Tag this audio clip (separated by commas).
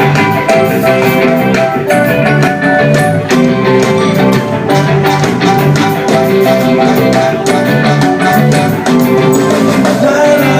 Music, Ska